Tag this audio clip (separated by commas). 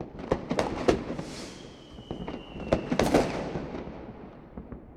Fire, Fireworks, Explosion